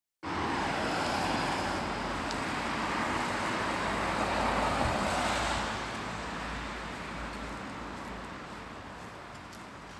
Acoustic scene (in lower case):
street